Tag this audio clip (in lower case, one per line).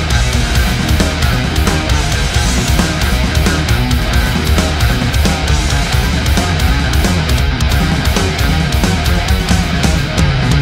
heavy metal
music